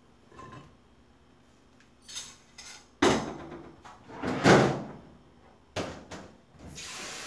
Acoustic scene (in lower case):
kitchen